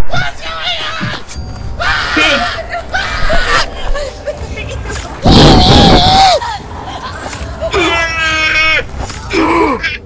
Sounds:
Speech

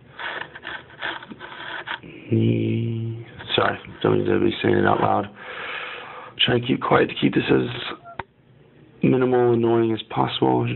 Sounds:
Speech

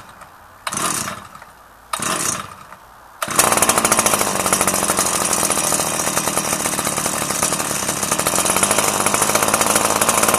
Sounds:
Power tool, Chainsaw

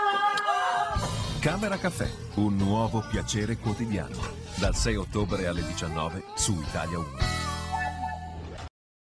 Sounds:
Speech, Music

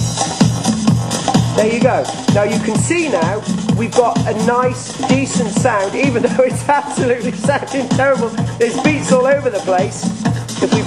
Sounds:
Electronic music, Music

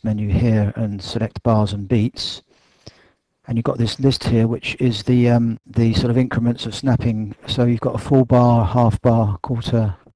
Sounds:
Speech

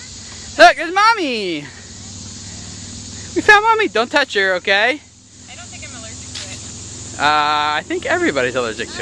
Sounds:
Speech, kid speaking

